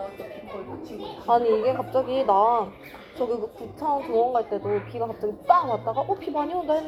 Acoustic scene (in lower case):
crowded indoor space